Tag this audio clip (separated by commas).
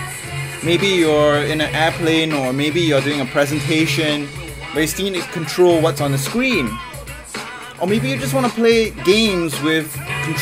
Music, Speech